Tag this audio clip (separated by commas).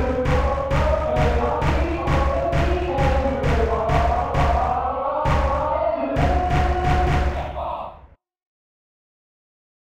Music